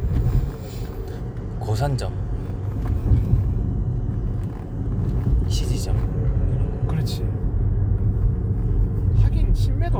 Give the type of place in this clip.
car